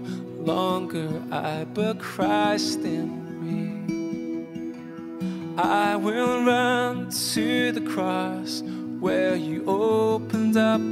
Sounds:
Music

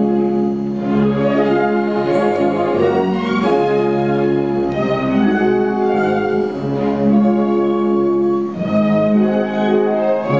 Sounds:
Orchestra

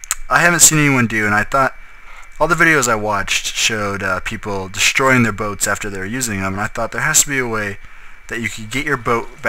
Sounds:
Speech

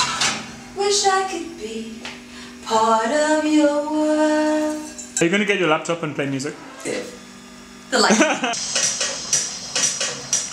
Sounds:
Speech

